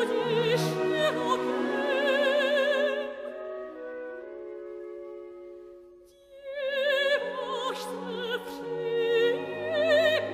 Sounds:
Music, Opera

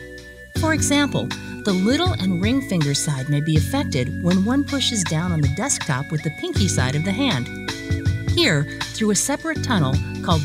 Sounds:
Music, Speech

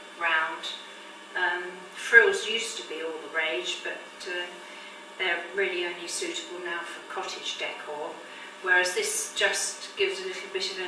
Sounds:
Speech

